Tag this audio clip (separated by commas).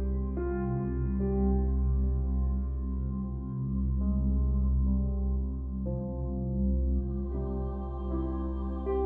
Music